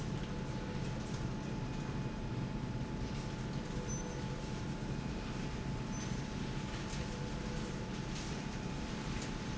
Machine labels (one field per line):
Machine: slide rail